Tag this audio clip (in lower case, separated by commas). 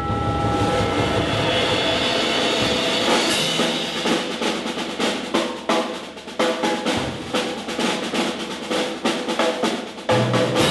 music, percussion